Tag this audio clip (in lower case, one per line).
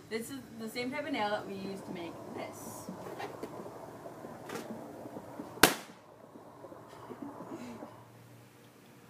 speech